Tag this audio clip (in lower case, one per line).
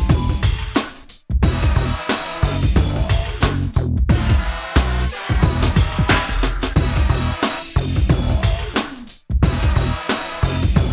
music